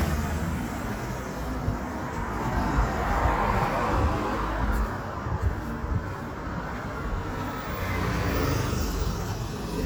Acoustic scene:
street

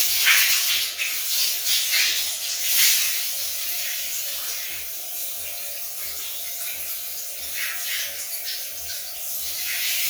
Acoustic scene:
restroom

